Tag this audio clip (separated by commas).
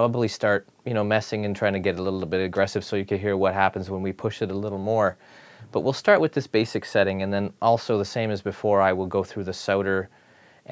Speech